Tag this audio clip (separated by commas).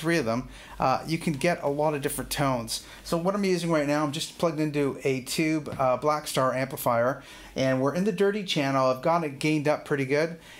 Speech